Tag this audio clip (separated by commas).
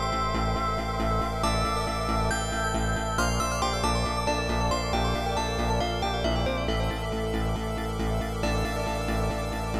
Music